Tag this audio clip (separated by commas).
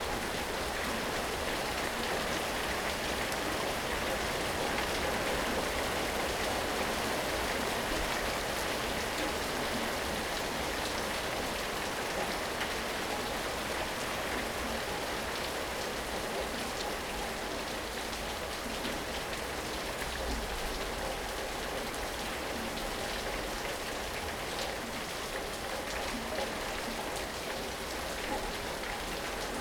Rain, Water